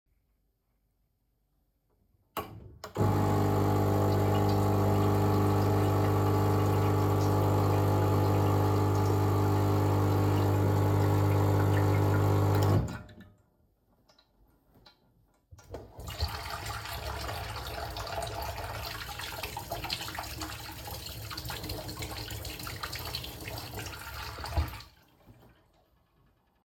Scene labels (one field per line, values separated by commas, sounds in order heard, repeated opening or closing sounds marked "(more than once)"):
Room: kitchen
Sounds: coffee machine, running water